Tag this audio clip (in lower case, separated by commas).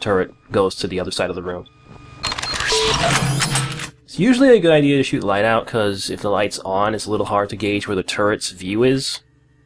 speech